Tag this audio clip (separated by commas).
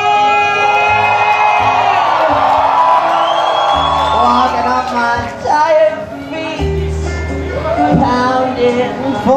Cheering, Crowd